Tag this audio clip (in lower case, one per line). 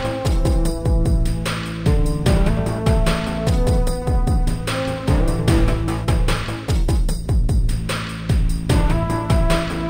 music